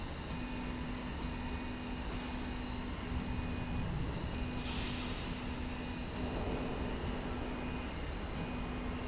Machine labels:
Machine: slide rail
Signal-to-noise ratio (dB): -6 dB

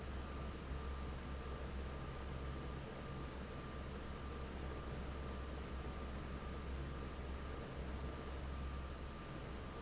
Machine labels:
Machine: fan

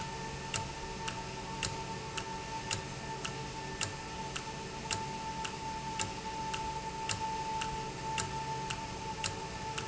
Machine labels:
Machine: valve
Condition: normal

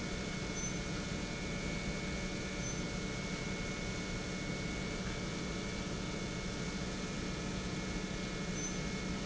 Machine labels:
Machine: pump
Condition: normal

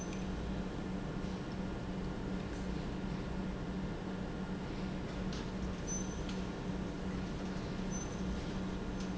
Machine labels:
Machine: pump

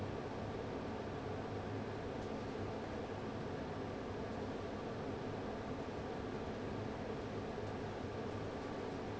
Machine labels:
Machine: fan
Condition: abnormal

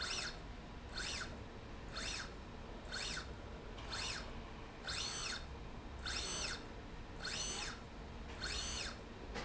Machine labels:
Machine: slide rail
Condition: normal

